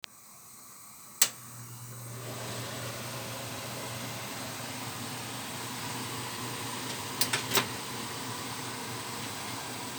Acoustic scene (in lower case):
kitchen